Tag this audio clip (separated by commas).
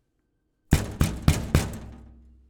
Domestic sounds, Wood, Knock, Door